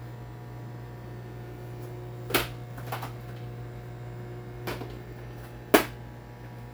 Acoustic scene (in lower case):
kitchen